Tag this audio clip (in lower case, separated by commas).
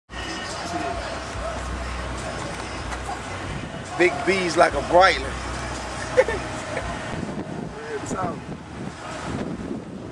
speech, car, outside, urban or man-made, vehicle, music